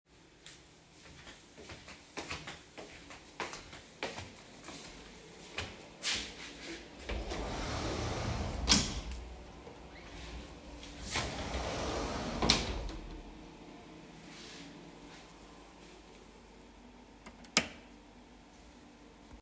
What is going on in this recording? I started recording while walking toward the wardrobe in the bedroom. I opened the drawer and then closed it again. After that I switched off the bedroom light then I stopped the reording